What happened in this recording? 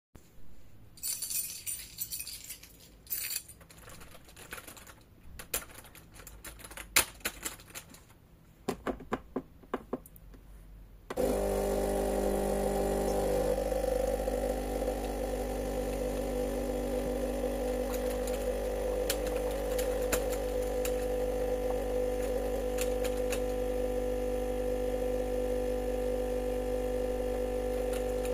Keys on a keychain were handled and produced a ringing sound. I then typed on a keyboard at the desk. Finally I pressed buttons on a coffee machine and started it.